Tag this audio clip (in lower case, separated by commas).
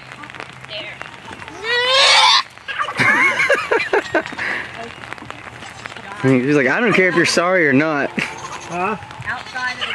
livestock